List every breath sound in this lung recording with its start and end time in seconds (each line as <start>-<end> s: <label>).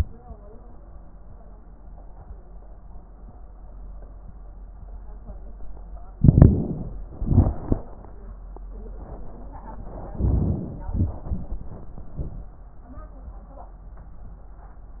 6.18-6.97 s: inhalation
6.18-6.97 s: crackles
7.20-7.90 s: exhalation
10.17-10.86 s: inhalation
10.18-10.86 s: crackles
10.86-12.46 s: exhalation